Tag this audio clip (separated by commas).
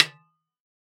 Percussion, Snare drum, Music, Musical instrument, Drum